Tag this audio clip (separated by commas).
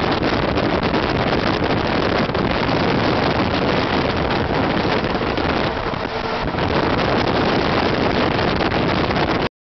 Vehicle